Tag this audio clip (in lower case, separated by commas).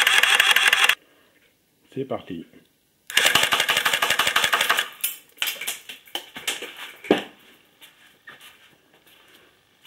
speech